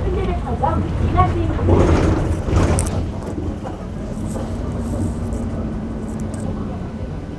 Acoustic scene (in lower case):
bus